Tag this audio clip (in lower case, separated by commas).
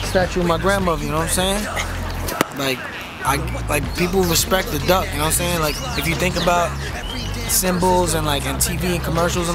music, animal, speech